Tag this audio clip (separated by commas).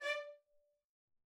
Musical instrument, Bowed string instrument, Music